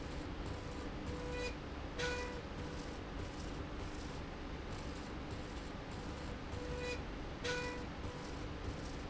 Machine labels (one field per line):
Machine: slide rail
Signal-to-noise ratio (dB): 0 dB